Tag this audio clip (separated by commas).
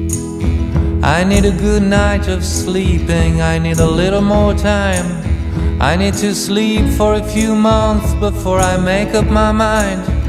Music